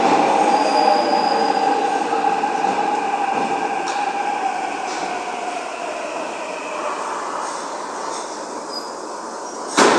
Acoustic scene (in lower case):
subway station